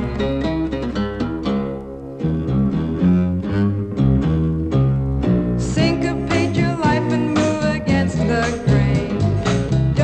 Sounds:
pizzicato

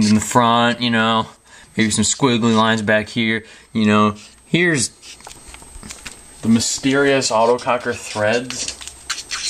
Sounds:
speech

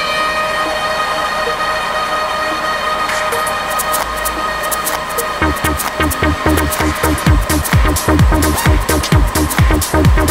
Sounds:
disco
music

